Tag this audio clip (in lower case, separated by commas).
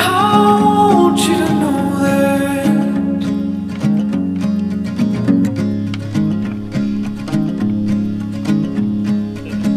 music, speech